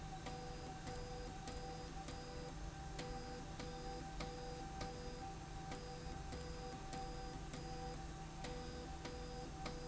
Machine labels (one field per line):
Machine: slide rail